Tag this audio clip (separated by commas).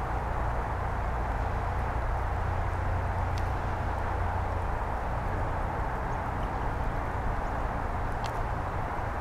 Animal, Bird